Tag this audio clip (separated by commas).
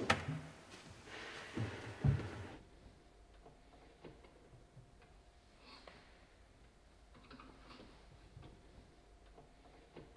opening or closing drawers